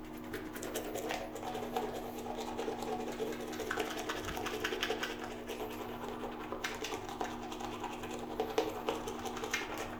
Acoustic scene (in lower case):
restroom